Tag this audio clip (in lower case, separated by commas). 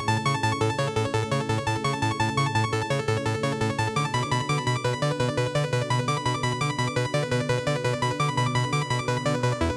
music, dubstep, electronic music